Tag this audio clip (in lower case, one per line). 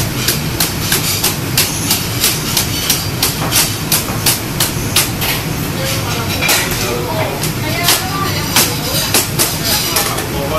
speech